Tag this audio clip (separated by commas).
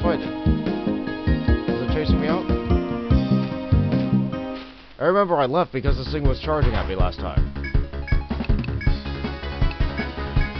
Speech, Music